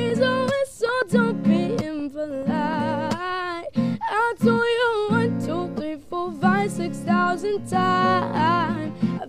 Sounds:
female singing

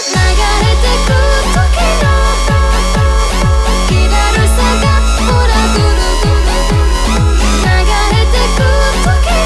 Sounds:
Electronic dance music, Dubstep, Music

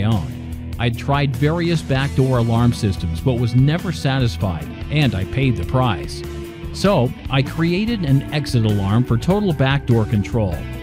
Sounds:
Music, Speech

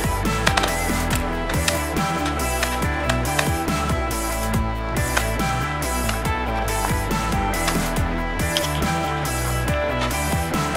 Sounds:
lighting firecrackers

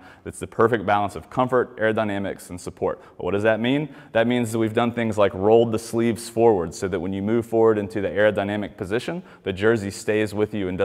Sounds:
Speech

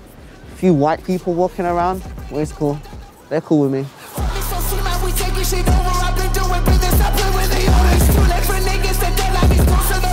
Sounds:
rapping

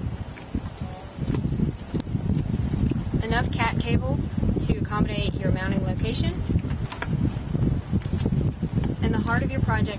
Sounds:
Speech

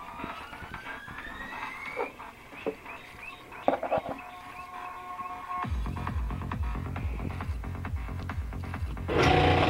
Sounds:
Music

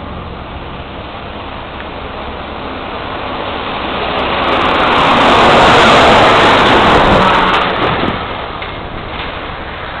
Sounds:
Vehicle, outside, rural or natural

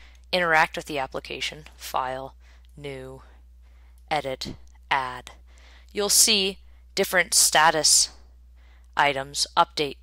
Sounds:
Speech

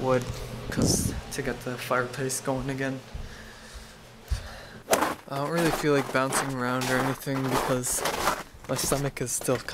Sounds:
bouncing on trampoline

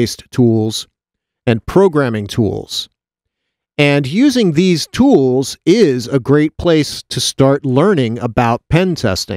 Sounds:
Speech

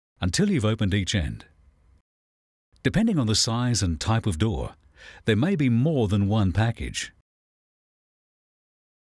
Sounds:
Speech

